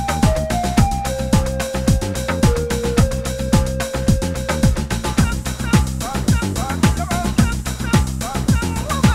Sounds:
music

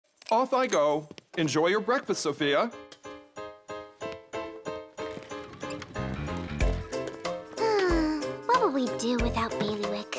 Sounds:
music
speech

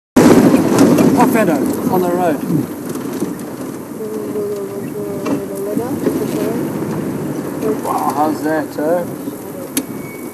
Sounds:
speech
vehicle

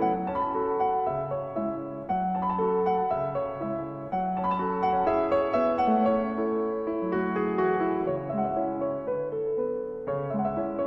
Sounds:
music

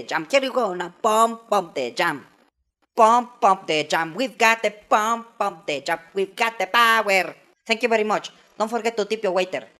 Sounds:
singing
speech
music

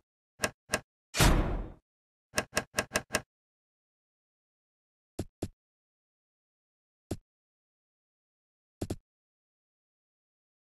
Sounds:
sound effect

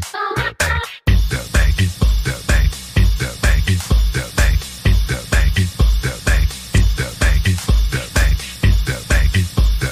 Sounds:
music

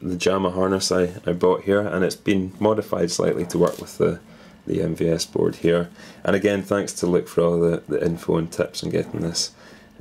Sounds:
speech

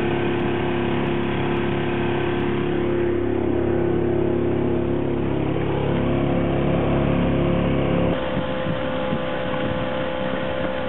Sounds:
vehicle

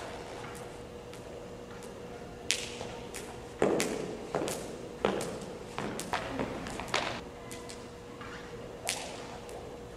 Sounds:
rope skipping

